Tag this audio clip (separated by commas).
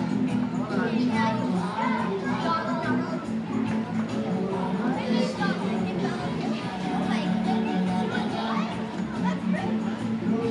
Music, Speech